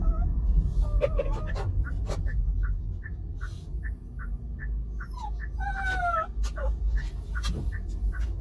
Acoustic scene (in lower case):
car